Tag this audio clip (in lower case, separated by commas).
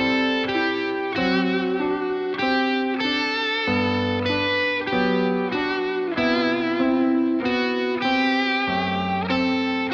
music, guitar, musical instrument, electric guitar, acoustic guitar, plucked string instrument, strum